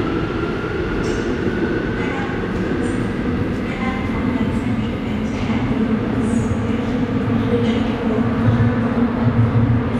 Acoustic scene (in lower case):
subway station